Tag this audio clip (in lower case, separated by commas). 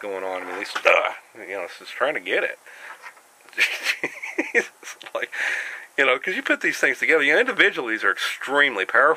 speech, inside a small room